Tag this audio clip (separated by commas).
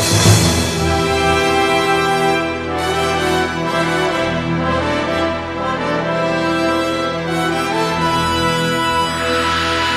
Music